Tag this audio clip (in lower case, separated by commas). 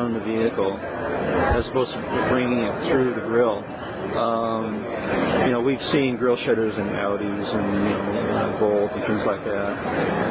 speech